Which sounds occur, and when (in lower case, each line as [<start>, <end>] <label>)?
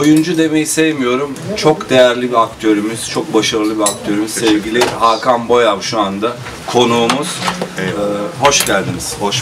[0.00, 6.40] man speaking
[0.00, 9.41] mechanisms
[0.01, 0.23] generic impact sounds
[3.84, 3.95] generic impact sounds
[4.41, 4.53] generic impact sounds
[4.80, 4.92] generic impact sounds
[6.67, 7.31] man speaking
[7.04, 7.16] generic impact sounds
[7.42, 7.66] generic impact sounds
[7.74, 8.37] human voice
[7.77, 7.91] generic impact sounds
[8.39, 9.41] man speaking
[8.47, 8.70] generic impact sounds